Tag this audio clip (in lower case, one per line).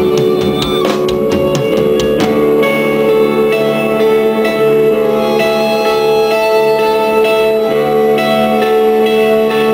music